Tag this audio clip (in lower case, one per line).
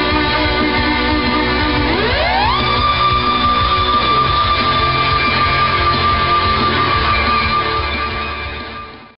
electric guitar
music
guitar
strum
plucked string instrument
musical instrument